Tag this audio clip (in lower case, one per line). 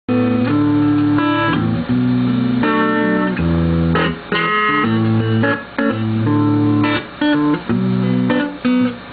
tapping (guitar technique)
guitar
music